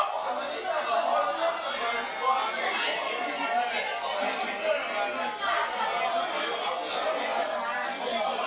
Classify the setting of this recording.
restaurant